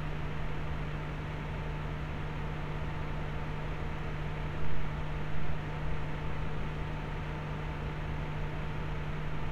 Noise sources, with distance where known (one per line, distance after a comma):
engine of unclear size, near